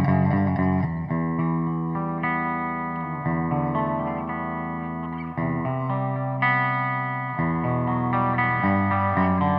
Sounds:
effects unit, musical instrument, guitar, plucked string instrument

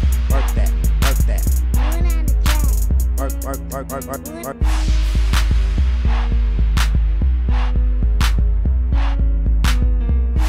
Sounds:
music, dance music

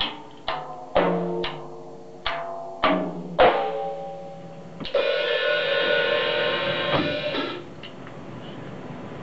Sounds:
drum kit, music, percussion, musical instrument

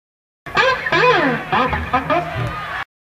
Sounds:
music

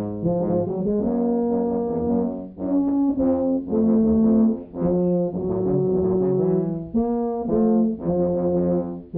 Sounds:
music

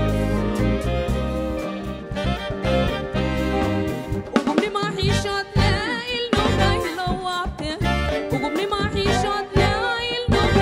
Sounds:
blues, music

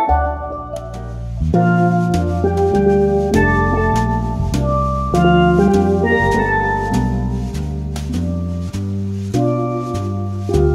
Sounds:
music, wedding music

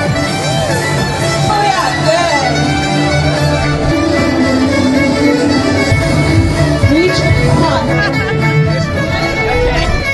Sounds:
speech, outside, urban or man-made, music

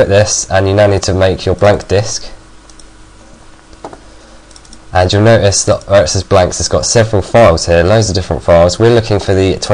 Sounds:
speech

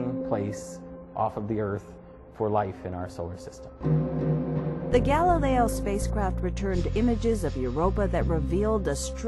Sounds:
music, speech

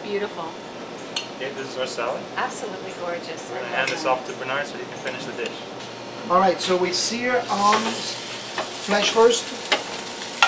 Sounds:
frying (food), inside a small room, speech

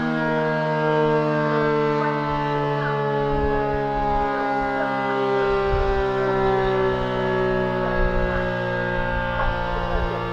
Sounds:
civil defense siren

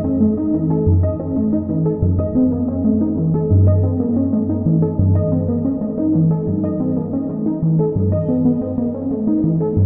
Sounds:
music, background music

